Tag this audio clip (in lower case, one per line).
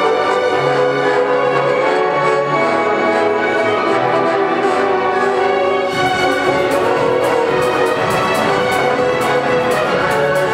music
orchestra
classical music